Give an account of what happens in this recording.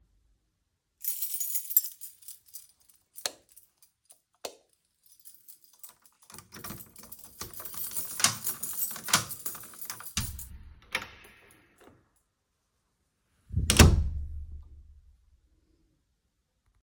I took the keys, turned off two lights, unlocked the door, opened it and then closed it.